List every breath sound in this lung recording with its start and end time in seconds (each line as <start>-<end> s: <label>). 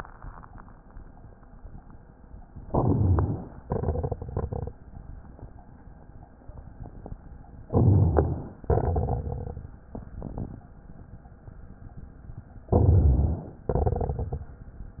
2.66-3.62 s: inhalation
3.62-4.74 s: exhalation
3.62-4.74 s: crackles
7.71-8.64 s: inhalation
8.67-10.64 s: exhalation
8.67-10.64 s: crackles
12.72-13.67 s: inhalation
13.68-14.62 s: exhalation
13.68-14.62 s: crackles